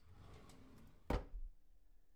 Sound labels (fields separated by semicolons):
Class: drawer; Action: opening; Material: wooden